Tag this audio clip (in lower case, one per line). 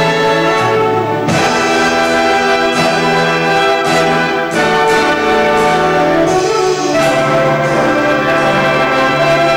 orchestra
trumpet
brass instrument
trombone